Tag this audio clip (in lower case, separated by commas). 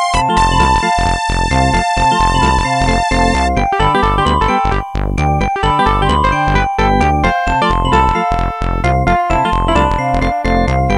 music, happy music